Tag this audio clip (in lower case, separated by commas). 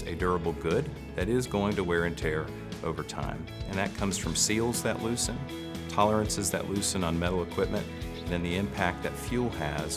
speech, music